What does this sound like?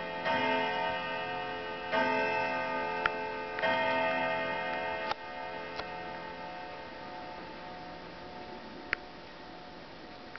A large clock chimes